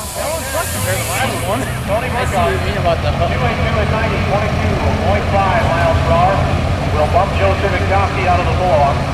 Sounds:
vehicle, speech, truck

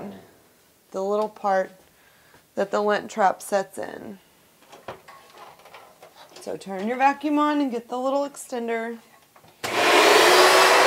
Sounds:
speech, inside a small room

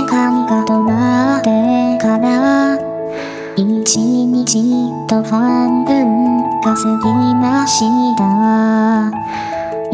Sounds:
music

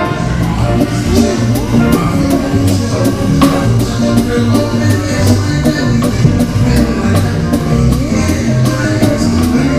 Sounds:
jazz, music, orchestra

